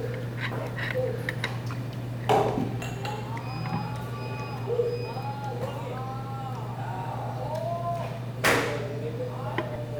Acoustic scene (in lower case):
restaurant